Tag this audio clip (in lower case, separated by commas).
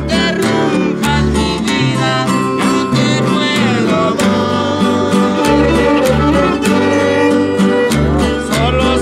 musical instrument, violin, pizzicato, music